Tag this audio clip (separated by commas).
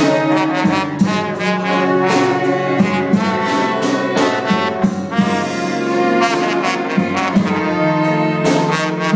Orchestra, Music